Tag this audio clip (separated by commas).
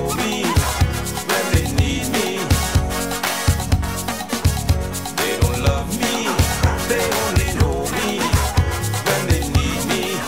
Funny music, Music